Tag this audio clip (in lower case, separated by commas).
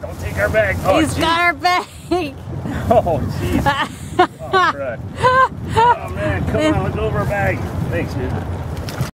speech